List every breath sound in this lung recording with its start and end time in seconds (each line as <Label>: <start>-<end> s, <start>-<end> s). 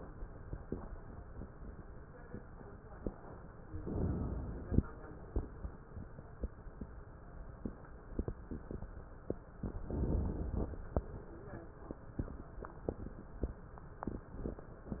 Inhalation: 3.75-4.83 s, 9.63-10.80 s
Crackles: 9.63-10.80 s